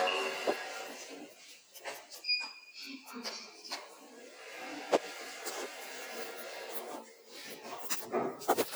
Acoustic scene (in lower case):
elevator